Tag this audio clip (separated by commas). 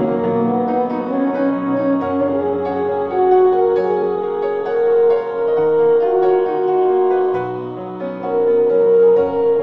playing french horn